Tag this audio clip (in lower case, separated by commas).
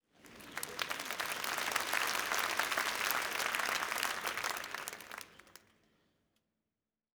applause, human group actions, crowd